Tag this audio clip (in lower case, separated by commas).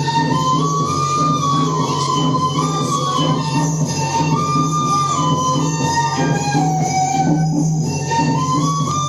music, speech